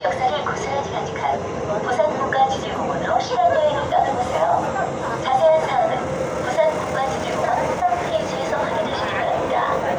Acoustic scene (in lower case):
subway train